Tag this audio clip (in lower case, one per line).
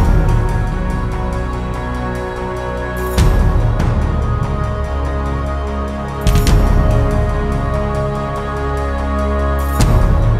music